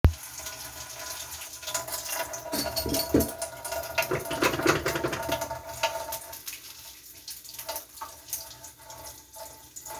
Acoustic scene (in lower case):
kitchen